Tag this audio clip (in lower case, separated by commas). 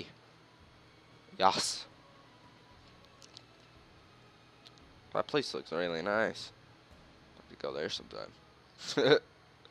speech, music